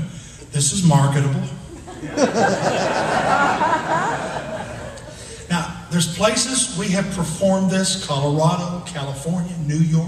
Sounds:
speech

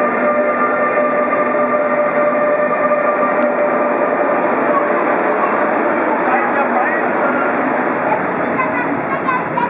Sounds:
speech

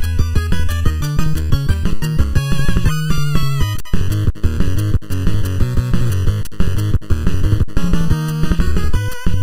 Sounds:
video game music
music

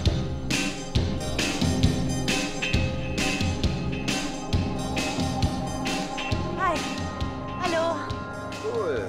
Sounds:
speech
music

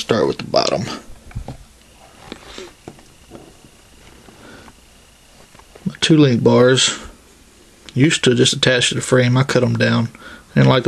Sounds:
speech

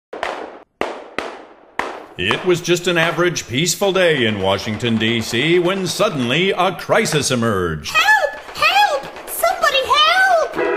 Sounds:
machine gun

